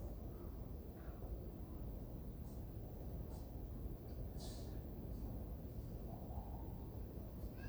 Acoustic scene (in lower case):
residential area